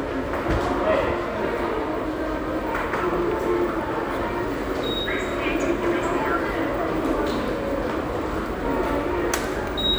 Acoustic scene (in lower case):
subway station